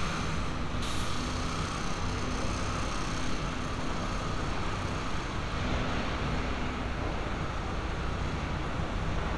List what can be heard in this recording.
unidentified impact machinery